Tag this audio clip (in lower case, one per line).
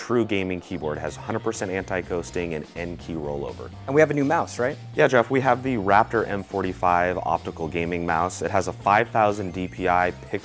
music
speech